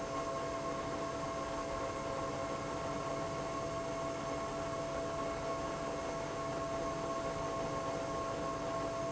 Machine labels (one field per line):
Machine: pump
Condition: abnormal